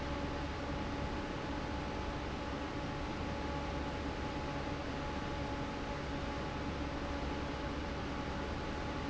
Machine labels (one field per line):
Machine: fan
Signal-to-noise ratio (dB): -6 dB